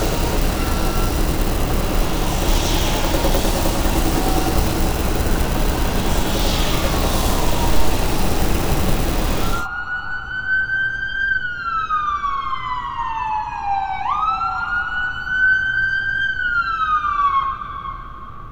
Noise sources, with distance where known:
siren

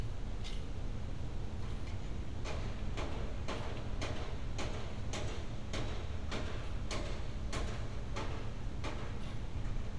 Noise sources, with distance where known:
unidentified impact machinery, far

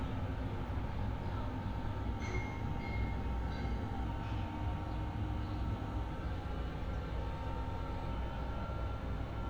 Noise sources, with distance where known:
engine of unclear size

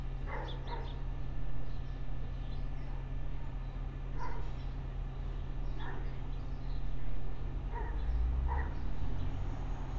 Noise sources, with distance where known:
dog barking or whining, far

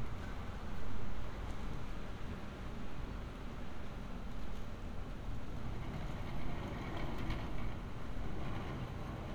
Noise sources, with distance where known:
background noise

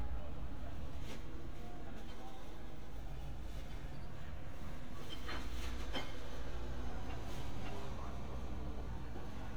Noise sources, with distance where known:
background noise

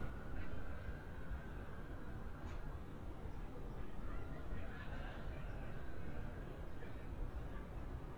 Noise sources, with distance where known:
siren, far; person or small group talking, far

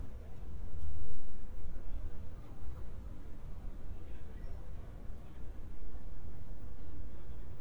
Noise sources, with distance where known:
person or small group talking, far

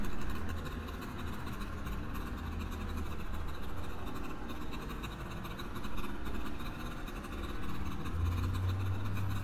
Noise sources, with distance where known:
small-sounding engine

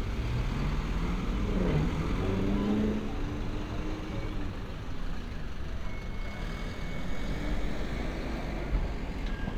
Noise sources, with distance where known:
large-sounding engine; person or small group talking

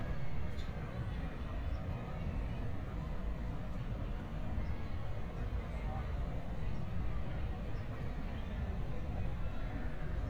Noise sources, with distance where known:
person or small group talking, far

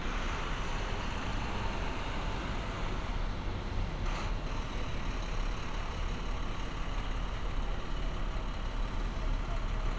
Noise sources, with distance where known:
large-sounding engine, far

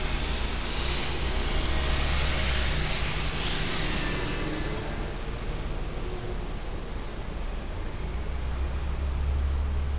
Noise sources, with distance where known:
engine of unclear size

